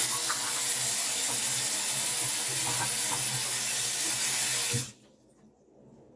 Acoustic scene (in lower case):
restroom